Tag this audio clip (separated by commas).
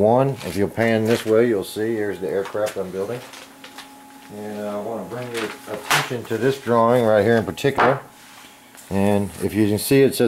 Speech